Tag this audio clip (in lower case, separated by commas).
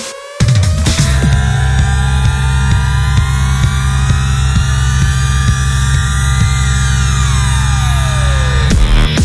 throbbing